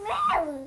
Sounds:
Speech, Human voice

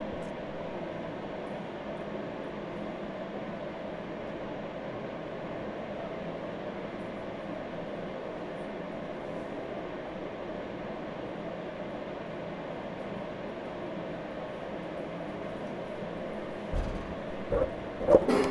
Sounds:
Mechanisms

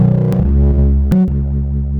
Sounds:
Piano, Keyboard (musical), Music, Musical instrument

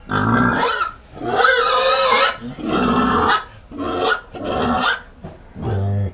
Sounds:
livestock, Animal

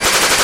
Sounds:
gunfire, Explosion

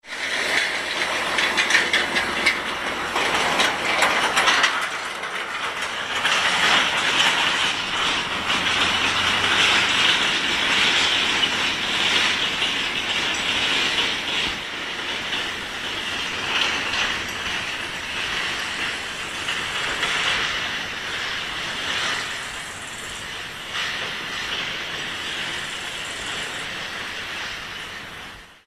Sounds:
Vehicle, Motor vehicle (road), Truck

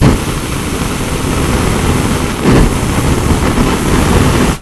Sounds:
Fire

